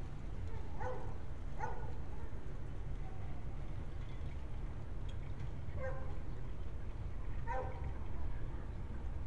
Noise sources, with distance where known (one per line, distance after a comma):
engine of unclear size
dog barking or whining, far